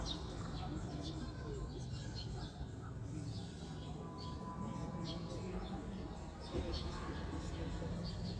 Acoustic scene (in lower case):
residential area